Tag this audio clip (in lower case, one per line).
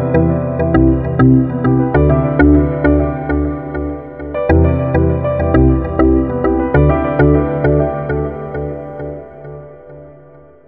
music